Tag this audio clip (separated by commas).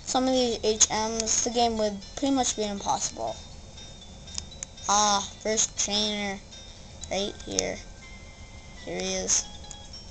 Music, Speech